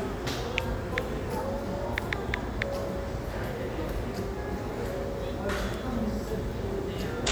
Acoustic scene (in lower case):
cafe